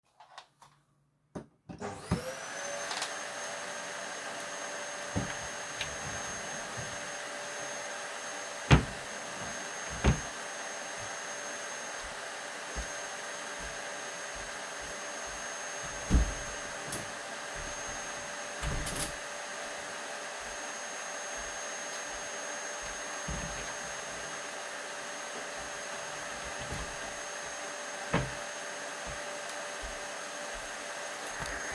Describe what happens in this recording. Vacuum in next room, I opned my wardrobe, walked to the window opned and closed it, closed the wardrobe after